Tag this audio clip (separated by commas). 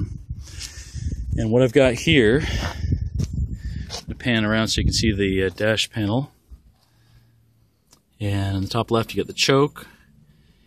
Speech